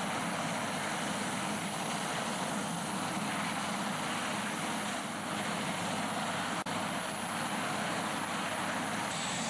Helicopter blades are rotating